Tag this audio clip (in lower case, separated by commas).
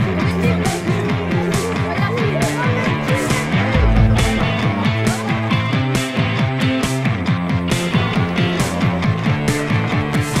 speech, music